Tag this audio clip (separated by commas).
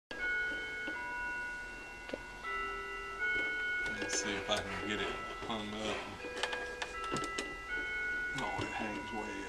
Music, Clock, Speech